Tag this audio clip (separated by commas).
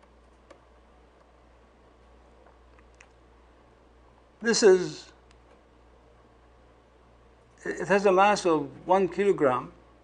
Speech